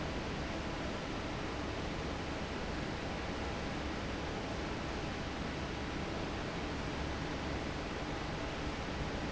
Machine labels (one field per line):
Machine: fan